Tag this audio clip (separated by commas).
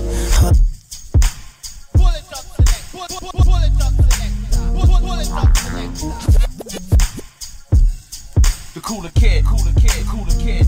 Music